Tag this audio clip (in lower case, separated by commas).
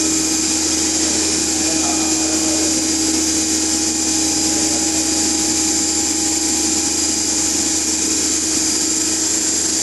inside a small room, speech